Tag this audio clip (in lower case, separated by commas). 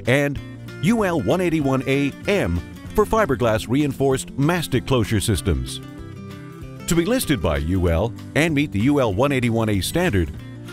speech, music